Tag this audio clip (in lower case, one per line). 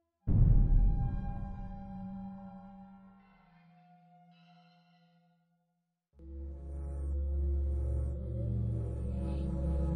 mantra
music